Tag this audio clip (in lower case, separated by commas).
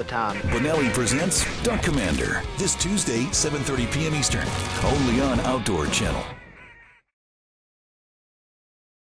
music, speech